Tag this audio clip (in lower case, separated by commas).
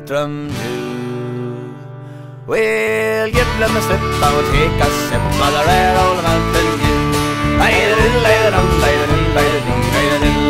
musical instrument, music